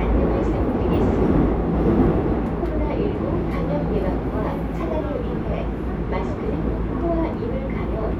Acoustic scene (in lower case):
subway train